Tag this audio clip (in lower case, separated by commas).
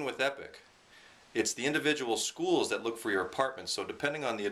speech